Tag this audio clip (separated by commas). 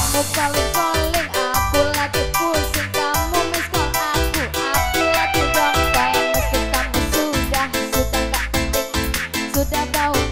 Music